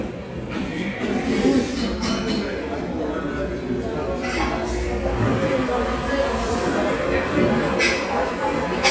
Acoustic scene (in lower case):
cafe